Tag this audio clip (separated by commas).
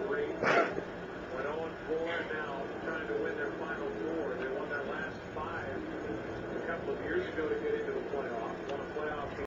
Speech